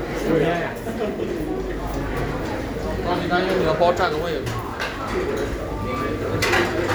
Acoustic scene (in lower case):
restaurant